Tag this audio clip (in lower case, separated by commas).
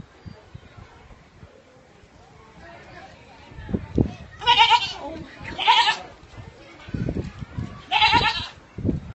animal, livestock, goat